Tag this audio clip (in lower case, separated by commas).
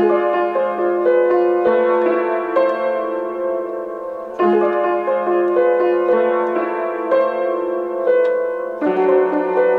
music